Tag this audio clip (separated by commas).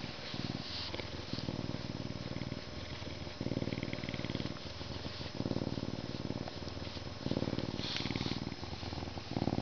cat purring